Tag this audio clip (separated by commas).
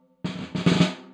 Musical instrument, Snare drum, Percussion, Music, Drum